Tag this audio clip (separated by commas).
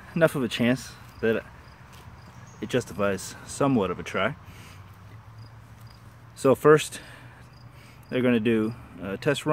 outside, urban or man-made, Speech